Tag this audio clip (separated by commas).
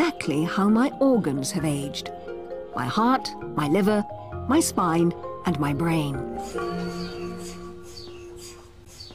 Music, Speech, inside a large room or hall